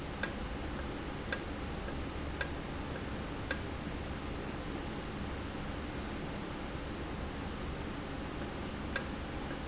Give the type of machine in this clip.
valve